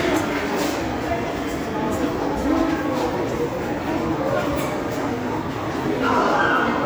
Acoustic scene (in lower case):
subway station